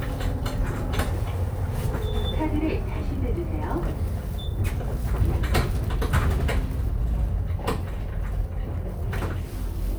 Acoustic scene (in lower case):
bus